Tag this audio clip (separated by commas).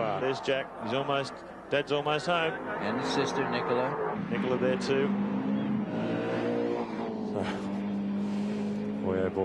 Car, auto racing, Vehicle, Speech